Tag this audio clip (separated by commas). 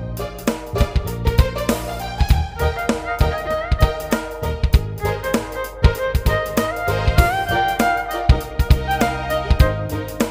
Violin, Musical instrument, Music